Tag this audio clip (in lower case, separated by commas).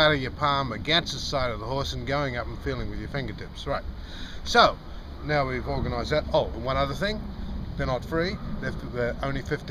speech